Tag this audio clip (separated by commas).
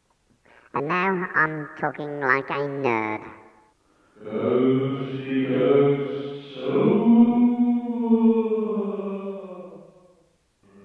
Speech